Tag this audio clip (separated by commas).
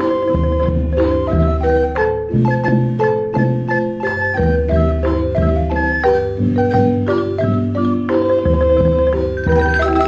Music